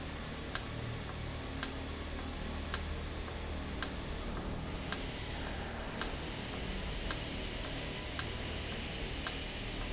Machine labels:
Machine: valve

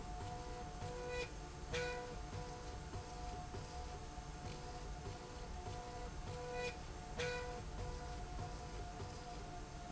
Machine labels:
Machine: slide rail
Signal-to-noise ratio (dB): 6 dB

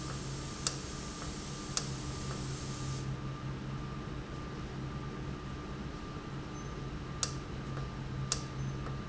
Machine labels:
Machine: valve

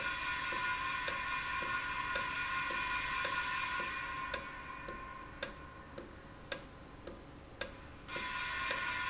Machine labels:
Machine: valve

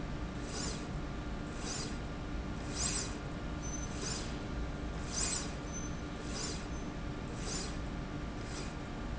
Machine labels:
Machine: slide rail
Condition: normal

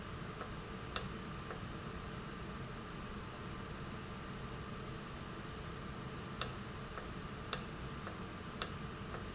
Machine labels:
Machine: valve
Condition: normal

